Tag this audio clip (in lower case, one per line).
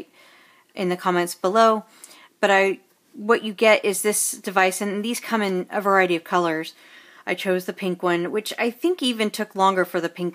speech